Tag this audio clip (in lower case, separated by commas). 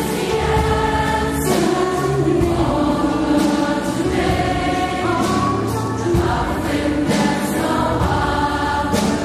choir, music